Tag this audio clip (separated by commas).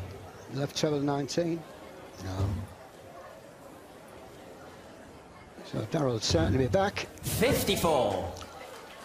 playing darts